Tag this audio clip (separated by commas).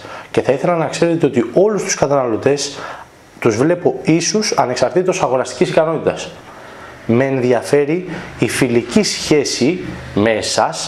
Speech